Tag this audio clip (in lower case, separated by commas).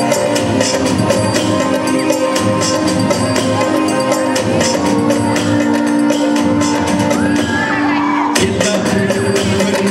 jingle (music), music